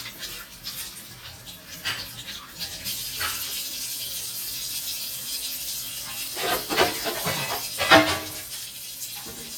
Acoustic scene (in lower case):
kitchen